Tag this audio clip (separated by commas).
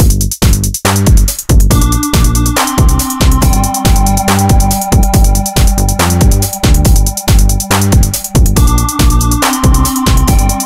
Music